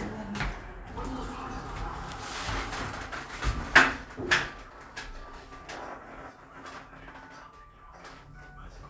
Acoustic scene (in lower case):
elevator